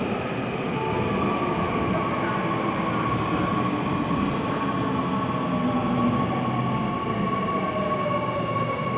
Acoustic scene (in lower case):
subway station